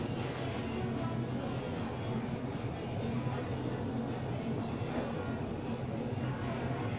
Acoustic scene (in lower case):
crowded indoor space